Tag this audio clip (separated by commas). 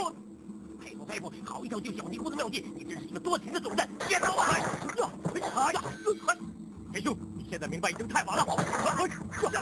Speech